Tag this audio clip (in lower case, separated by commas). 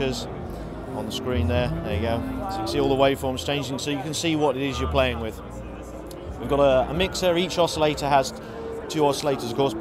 music, speech